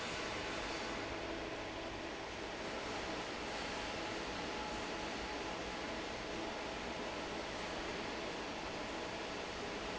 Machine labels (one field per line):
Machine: fan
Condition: normal